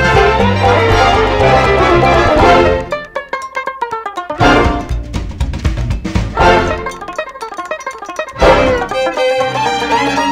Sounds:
Country, Music

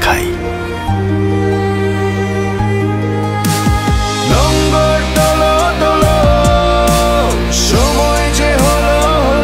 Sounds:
Music, Speech

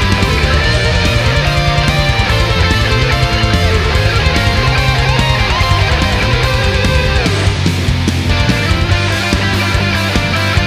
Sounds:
Strum, Electric guitar, Guitar, Musical instrument, Music, Plucked string instrument, Bass guitar

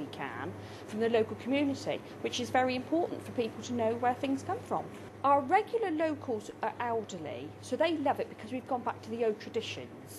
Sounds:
Speech

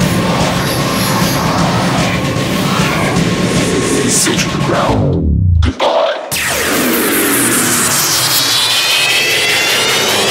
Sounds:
Music, Speech

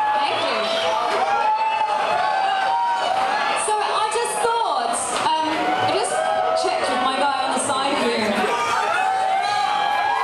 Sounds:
Speech

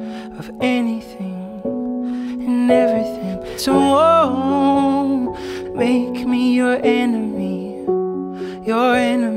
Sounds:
Music

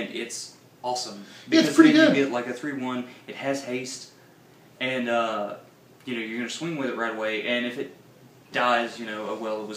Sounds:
Speech

